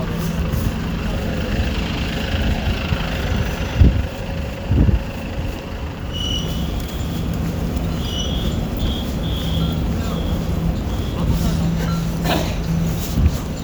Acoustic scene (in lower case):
residential area